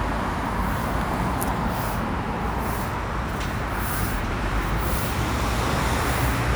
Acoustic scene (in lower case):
street